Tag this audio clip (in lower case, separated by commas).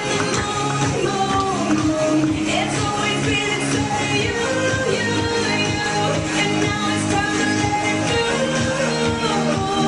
music